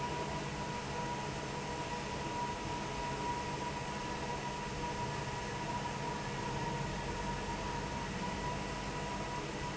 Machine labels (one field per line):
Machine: fan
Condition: normal